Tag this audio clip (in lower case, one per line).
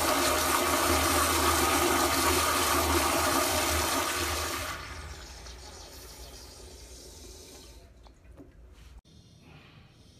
toilet flushing